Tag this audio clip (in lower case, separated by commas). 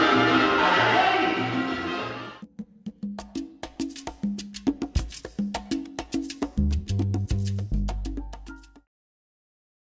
music